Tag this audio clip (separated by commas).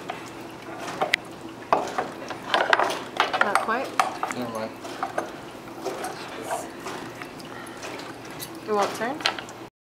Speech